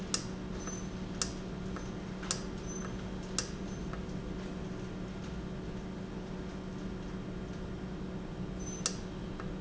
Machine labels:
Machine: valve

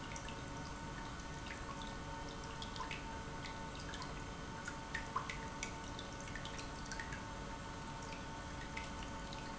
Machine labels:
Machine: pump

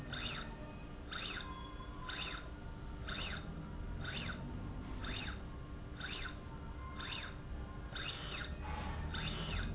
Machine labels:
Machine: slide rail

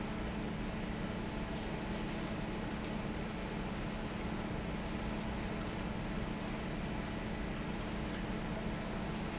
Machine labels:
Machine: fan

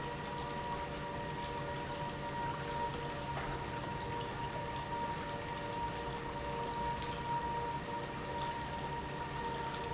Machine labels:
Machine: pump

